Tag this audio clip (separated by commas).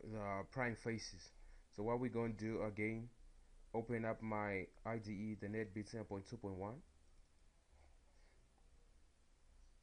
Speech